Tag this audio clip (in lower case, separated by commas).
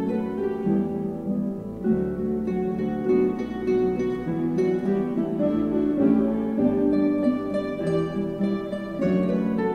orchestra, music, guitar, plucked string instrument, musical instrument